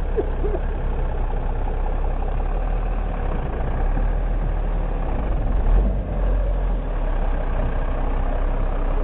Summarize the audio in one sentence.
He is coughing, vehicle is running